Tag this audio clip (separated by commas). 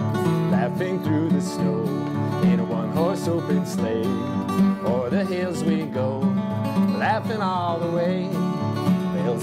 Music